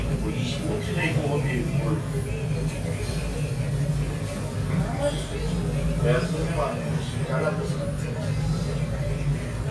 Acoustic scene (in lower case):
restaurant